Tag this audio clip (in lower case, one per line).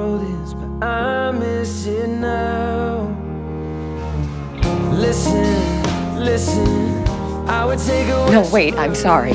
music